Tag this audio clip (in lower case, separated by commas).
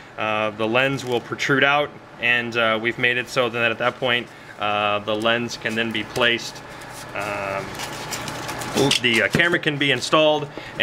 speech, inside a small room